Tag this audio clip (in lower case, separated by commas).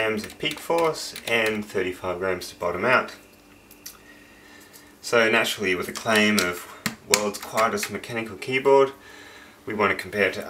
speech, typing, computer keyboard